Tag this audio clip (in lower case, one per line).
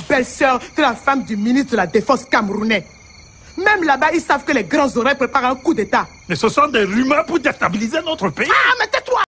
speech